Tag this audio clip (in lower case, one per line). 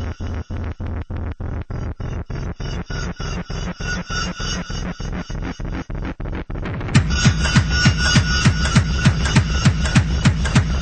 music